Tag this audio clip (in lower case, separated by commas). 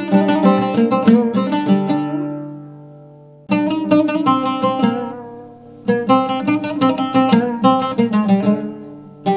pizzicato